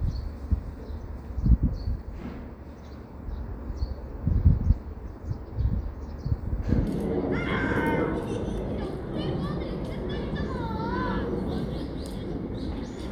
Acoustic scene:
residential area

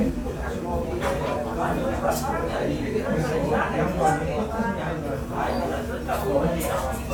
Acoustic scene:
crowded indoor space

